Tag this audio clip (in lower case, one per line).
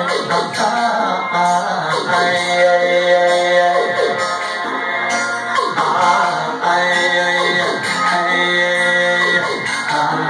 music
sound effect